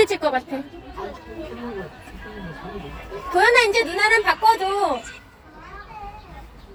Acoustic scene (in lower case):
park